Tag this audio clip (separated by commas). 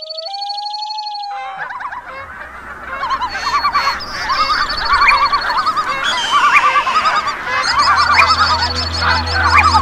Turkey, Fowl, Gobble